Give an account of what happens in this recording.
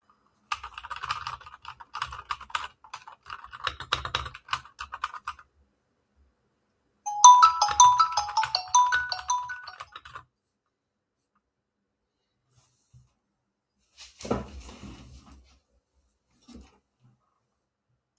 I pressed the record button with my mouse on my PC. Then I started typing on my keyboard and my phone started ringing so I got up to thake the call.